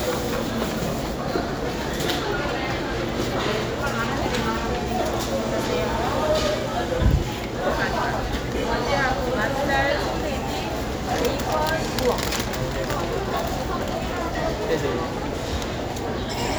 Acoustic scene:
crowded indoor space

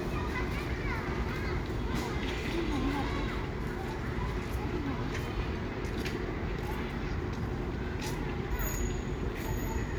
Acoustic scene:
residential area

